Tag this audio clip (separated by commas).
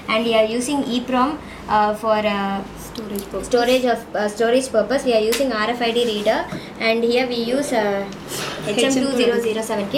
Speech